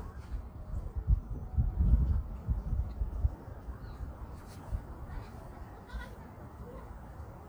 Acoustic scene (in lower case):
park